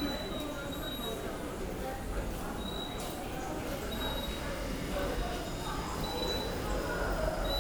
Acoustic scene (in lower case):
subway station